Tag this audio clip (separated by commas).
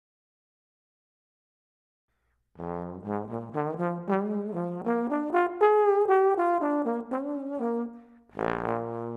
playing trombone